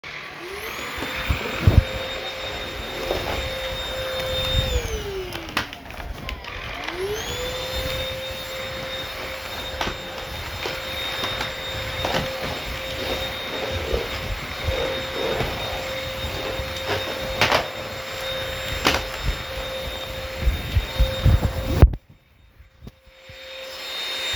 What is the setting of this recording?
living room